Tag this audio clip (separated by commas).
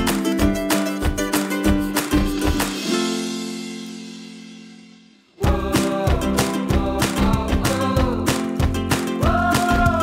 Music